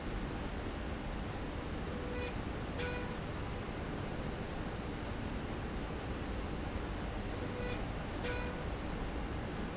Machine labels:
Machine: slide rail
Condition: normal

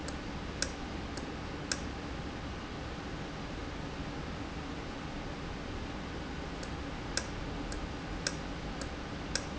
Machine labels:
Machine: valve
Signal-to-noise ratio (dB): -6 dB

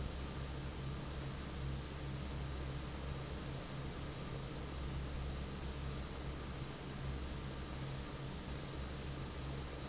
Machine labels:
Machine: fan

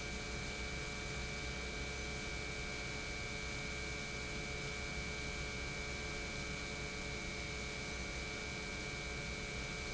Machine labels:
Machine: pump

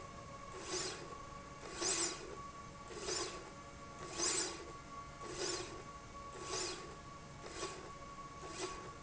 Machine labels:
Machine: slide rail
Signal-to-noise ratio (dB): 6 dB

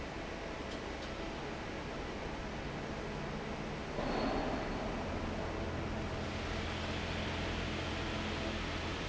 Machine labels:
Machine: fan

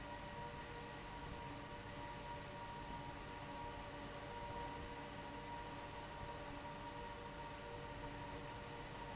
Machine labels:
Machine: fan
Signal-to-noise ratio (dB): 6 dB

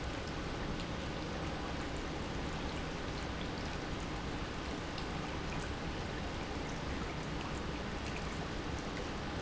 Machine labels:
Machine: pump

